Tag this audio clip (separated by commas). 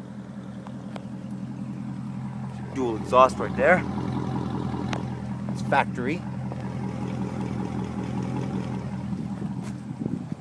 outside, urban or man-made, Speech, Vehicle, Car